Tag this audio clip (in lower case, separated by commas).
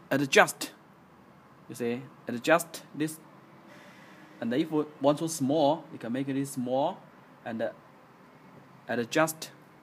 speech